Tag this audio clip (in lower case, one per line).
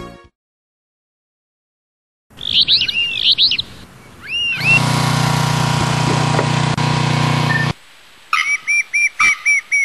bird song
outside, rural or natural
tweet